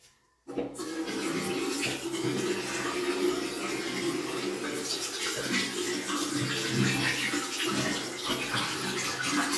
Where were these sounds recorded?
in a restroom